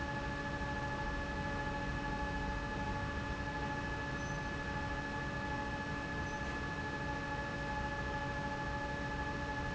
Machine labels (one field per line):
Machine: fan